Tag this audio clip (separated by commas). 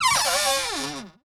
Door, Domestic sounds, Cupboard open or close